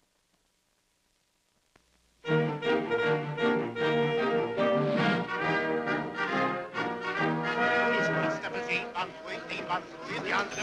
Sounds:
music, speech

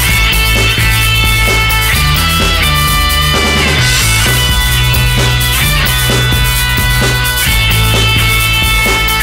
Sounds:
rock and roll, rock music, music

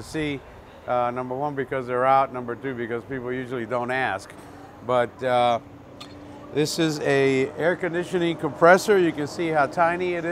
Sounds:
speech

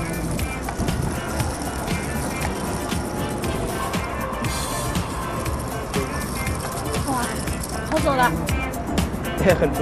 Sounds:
music, speech

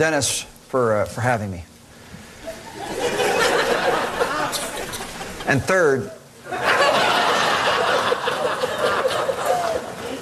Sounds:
speech, narration, man speaking

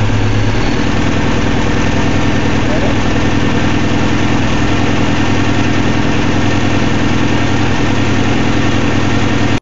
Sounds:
engine, idling, medium engine (mid frequency), vehicle

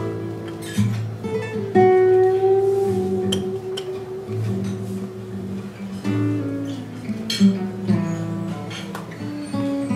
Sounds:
musical instrument, plucked string instrument, guitar, music, strum

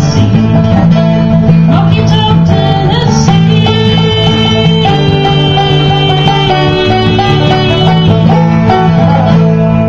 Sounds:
fiddle, traditional music, musical instrument, guitar, music, bowed string instrument, banjo

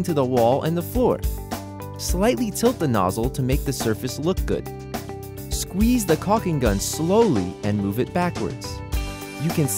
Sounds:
speech, music

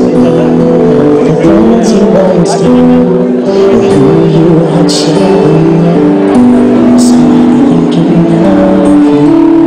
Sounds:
music

